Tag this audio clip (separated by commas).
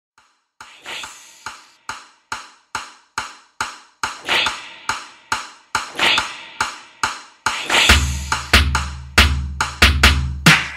Percussion, Drum